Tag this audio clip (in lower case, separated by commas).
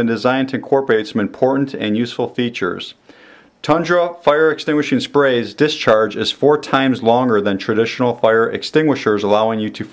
speech